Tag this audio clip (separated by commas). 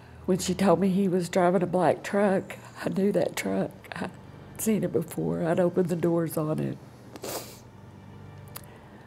inside a small room, Speech